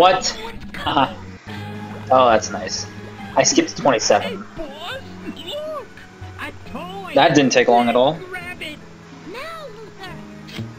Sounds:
music, speech

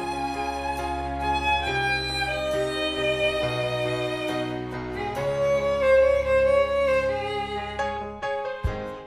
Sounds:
fiddle, bowed string instrument, classical music, music, musical instrument

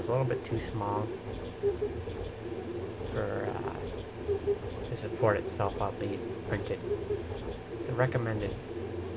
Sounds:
speech

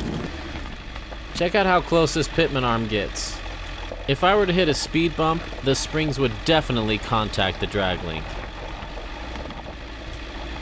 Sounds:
car, outside, rural or natural, speech, vehicle

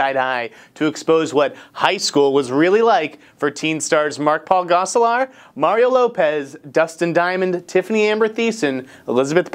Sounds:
speech

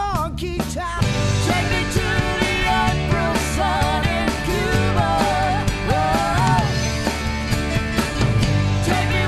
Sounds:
music, singing, independent music

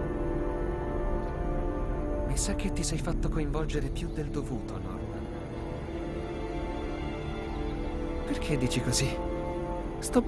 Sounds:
music, speech

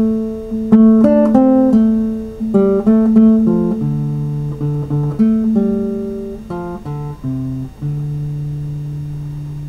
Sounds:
music, musical instrument, plucked string instrument, acoustic guitar, guitar

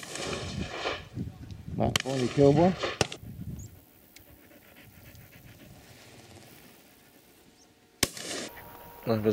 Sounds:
pant, speech

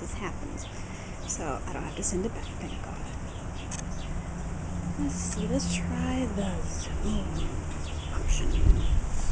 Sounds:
speech

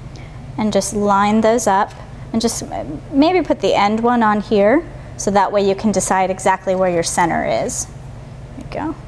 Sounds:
inside a small room, speech

